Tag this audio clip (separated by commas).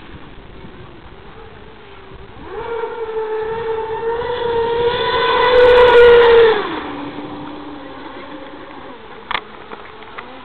speedboat, Vehicle